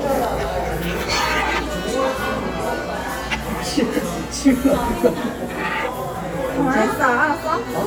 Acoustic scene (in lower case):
cafe